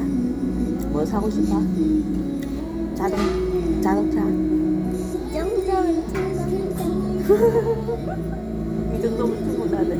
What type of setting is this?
restaurant